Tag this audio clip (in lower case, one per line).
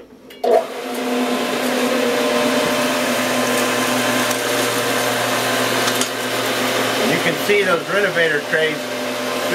vacuum cleaner